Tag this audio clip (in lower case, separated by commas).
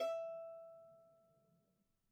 musical instrument, bowed string instrument, music